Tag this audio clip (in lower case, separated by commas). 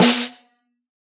music, snare drum, musical instrument, drum, percussion